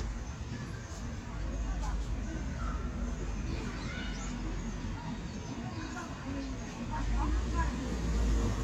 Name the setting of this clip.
residential area